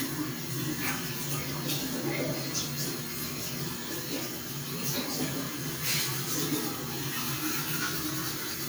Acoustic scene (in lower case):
restroom